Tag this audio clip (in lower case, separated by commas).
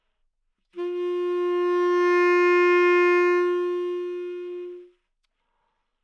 musical instrument, music, woodwind instrument